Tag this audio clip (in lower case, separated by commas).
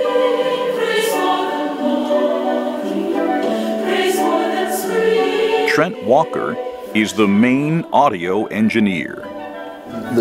music, choir